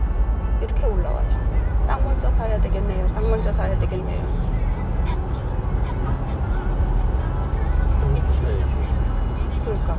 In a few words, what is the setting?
car